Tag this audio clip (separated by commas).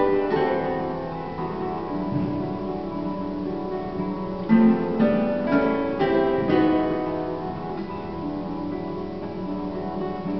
Guitar, Plucked string instrument, Music, Musical instrument, Acoustic guitar